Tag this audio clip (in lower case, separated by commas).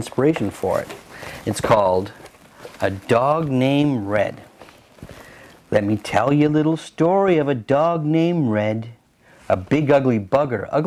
speech